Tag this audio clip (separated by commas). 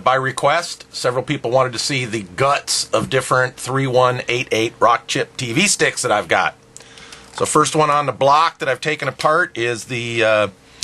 Speech